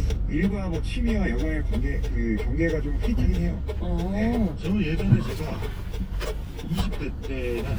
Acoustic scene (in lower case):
car